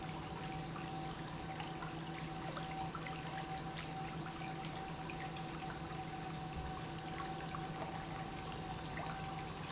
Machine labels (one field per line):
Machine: pump